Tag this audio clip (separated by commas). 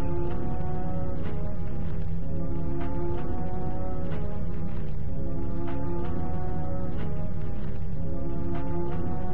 Tender music, Music